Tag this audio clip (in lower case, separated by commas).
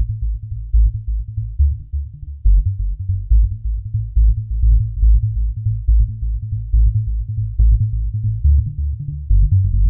music, synthesizer